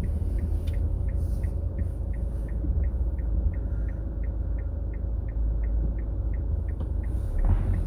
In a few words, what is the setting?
car